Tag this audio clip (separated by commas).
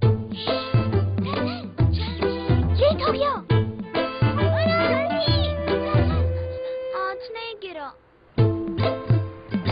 Speech, Music